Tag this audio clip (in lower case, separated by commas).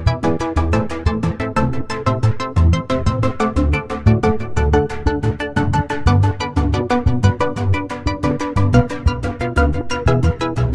music